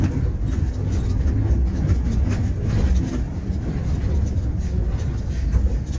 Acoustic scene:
bus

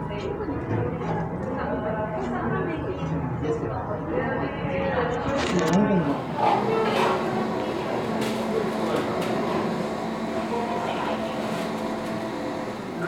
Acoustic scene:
cafe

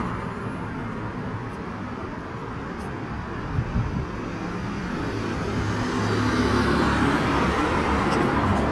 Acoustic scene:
street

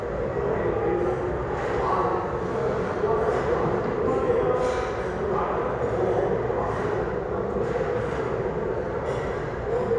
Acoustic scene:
restaurant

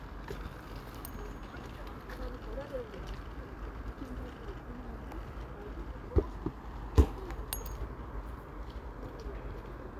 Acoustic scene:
park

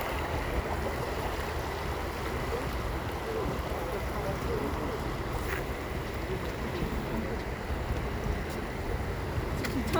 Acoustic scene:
park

